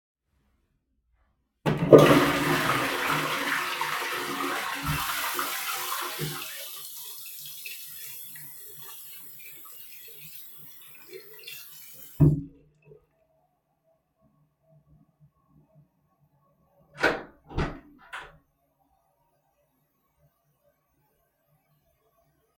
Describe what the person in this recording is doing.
I flushed the toilet and startet washing my hands. Then i opened the bathroom door.